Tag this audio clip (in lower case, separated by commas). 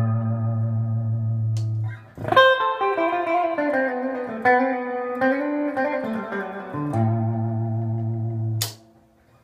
electric guitar, strum, plucked string instrument, guitar, music, musical instrument